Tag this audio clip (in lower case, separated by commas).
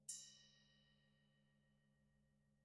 musical instrument, music, percussion, gong